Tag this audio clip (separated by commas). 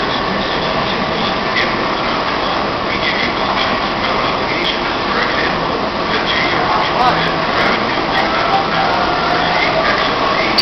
Speech